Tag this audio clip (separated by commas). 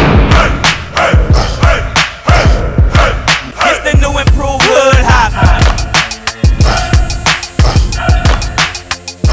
Music, Independent music